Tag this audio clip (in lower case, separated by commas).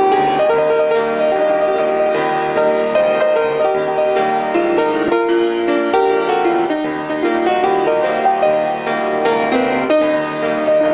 music, gospel music